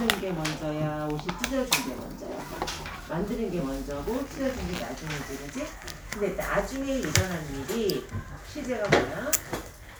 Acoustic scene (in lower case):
crowded indoor space